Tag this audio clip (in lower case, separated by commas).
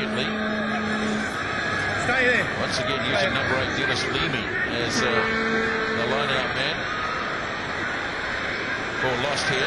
speech